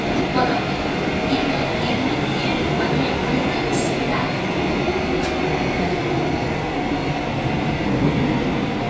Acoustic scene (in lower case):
subway train